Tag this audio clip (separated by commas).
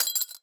Glass, Shatter